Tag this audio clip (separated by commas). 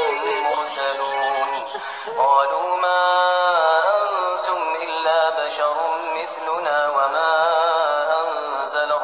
infant cry